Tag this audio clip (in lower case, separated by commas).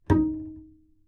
bowed string instrument, musical instrument, music